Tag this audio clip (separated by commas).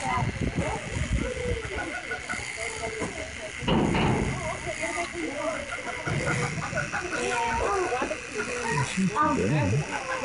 Speech